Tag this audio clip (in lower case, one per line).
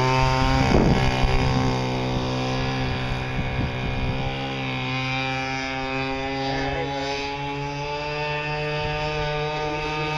motorboat
speedboat
vehicle